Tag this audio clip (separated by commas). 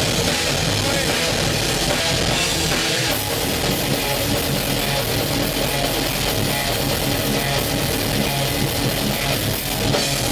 Drum, Speech, Music